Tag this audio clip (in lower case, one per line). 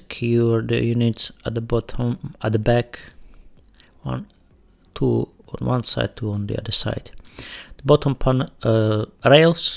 opening or closing drawers